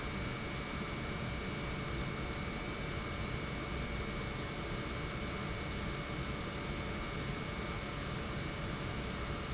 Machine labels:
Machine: pump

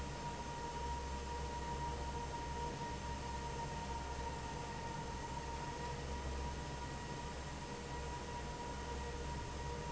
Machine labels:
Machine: fan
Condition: normal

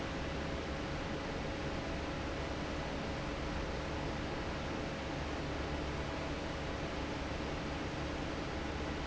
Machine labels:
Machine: fan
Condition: normal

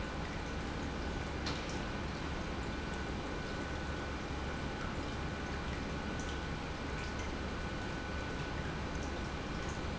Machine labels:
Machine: pump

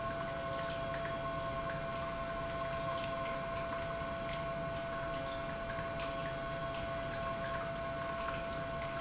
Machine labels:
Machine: pump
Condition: normal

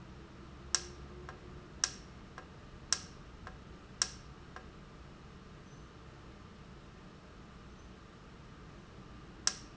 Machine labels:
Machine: valve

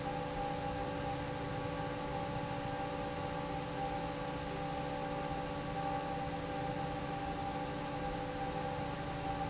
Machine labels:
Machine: fan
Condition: normal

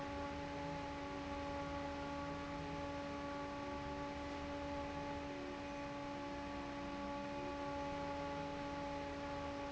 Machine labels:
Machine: fan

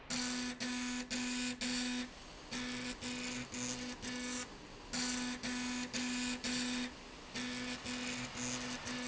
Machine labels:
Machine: slide rail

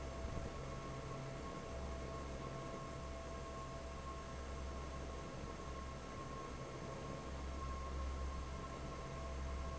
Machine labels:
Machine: fan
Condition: normal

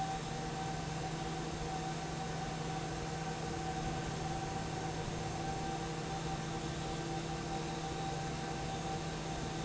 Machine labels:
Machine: fan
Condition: normal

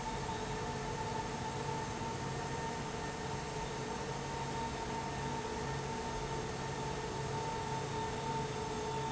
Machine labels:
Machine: fan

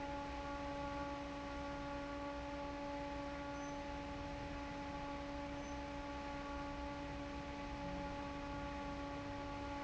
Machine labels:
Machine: fan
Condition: normal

